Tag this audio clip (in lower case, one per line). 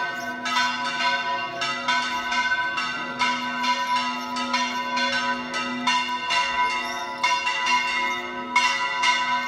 church bell ringing